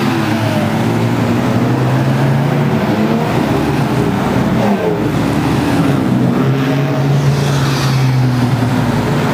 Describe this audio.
Car accelerating loudly and whizzing by